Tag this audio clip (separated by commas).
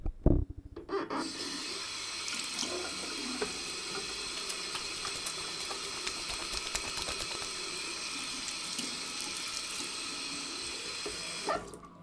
Sink (filling or washing), Domestic sounds